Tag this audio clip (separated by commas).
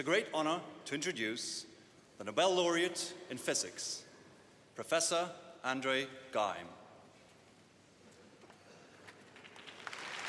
man speaking, Speech, Narration